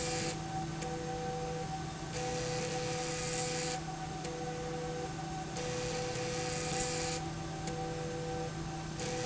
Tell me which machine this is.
slide rail